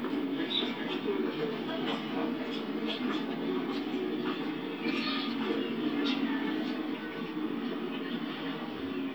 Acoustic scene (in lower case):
park